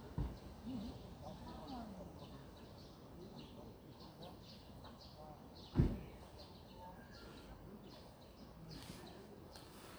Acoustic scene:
park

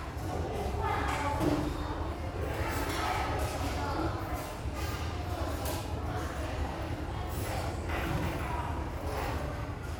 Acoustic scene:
restaurant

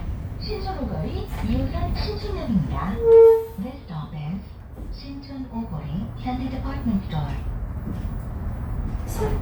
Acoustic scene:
bus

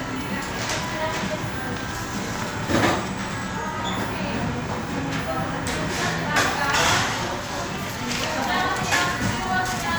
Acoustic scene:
crowded indoor space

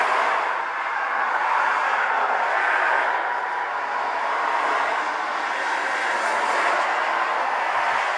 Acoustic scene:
street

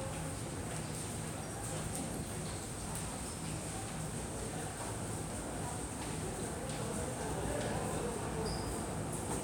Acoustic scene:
subway station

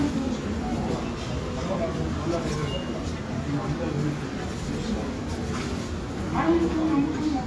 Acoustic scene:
subway station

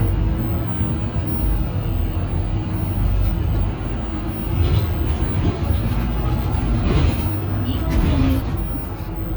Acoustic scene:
bus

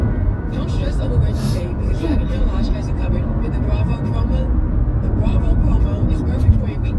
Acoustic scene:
car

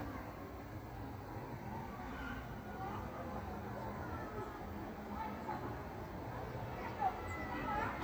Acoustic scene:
park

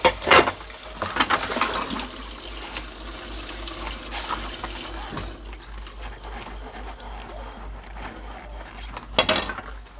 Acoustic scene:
kitchen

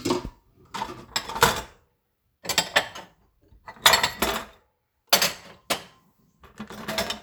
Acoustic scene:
kitchen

